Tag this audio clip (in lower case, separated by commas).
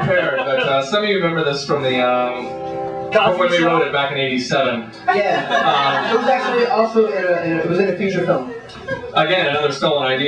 speech, music